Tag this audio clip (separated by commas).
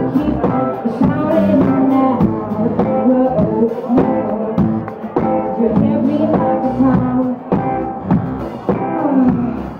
Music